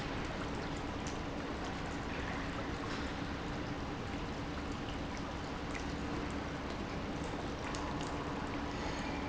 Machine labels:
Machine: pump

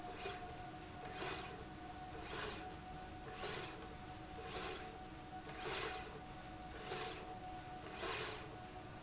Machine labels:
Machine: slide rail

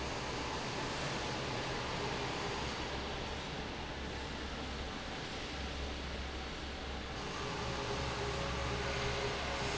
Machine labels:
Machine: fan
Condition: normal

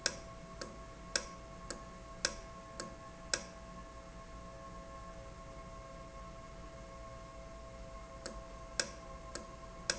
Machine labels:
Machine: valve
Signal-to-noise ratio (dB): 6 dB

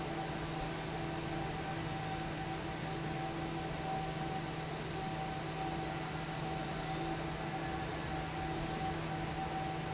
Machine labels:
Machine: fan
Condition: normal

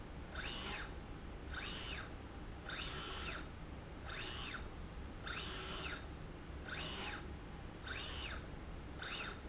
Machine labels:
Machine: slide rail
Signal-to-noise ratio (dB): 6 dB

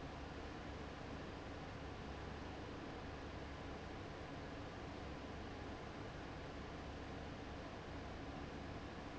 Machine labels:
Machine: fan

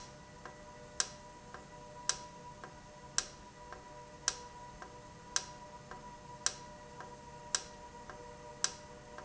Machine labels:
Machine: valve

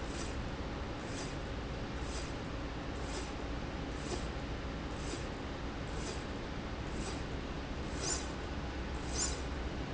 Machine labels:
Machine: slide rail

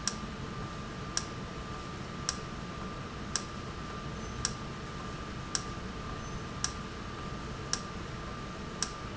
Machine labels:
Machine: valve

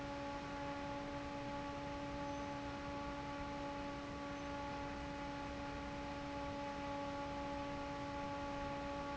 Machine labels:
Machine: fan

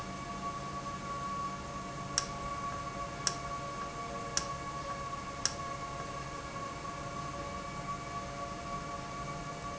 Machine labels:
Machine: valve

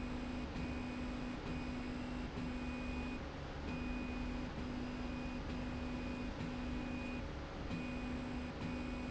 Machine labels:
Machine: slide rail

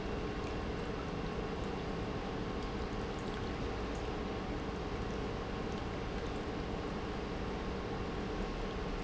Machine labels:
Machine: pump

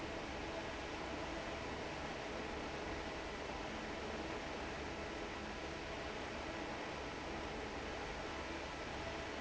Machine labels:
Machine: fan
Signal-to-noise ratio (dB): 6 dB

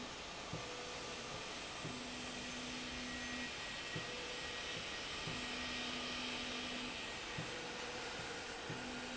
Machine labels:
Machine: slide rail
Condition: normal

